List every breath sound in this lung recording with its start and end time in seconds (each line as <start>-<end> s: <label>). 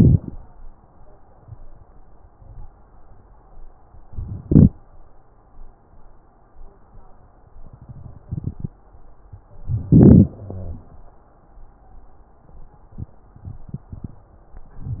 0.00-0.37 s: inhalation
4.43-4.79 s: inhalation
9.67-10.37 s: inhalation
10.37-10.83 s: exhalation
10.37-10.83 s: wheeze